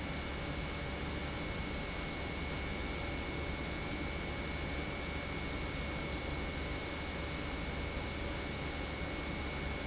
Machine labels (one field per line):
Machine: pump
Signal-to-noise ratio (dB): -6 dB